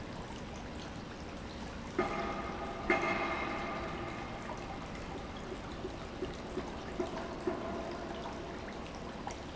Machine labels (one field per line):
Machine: pump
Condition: normal